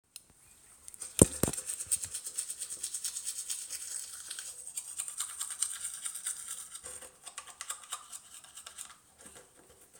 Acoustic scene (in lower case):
restroom